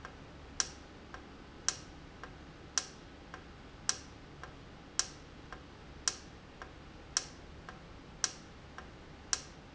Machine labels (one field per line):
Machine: valve